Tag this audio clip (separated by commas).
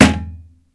thud